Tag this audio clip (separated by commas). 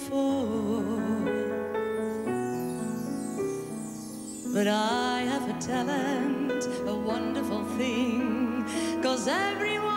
Music, Independent music